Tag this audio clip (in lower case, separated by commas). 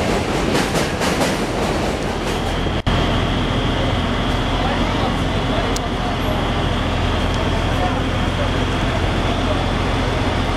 speech, vehicle